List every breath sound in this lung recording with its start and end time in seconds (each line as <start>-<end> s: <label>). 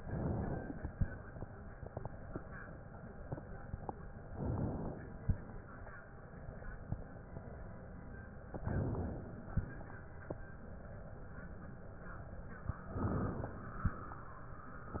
0.00-0.98 s: inhalation
4.29-5.22 s: inhalation
8.46-9.51 s: inhalation
12.79-13.63 s: inhalation